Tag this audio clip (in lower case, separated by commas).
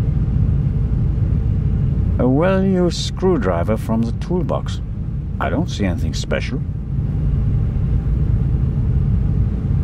silence, speech